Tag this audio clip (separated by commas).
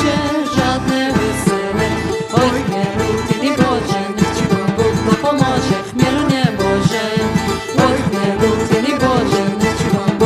Music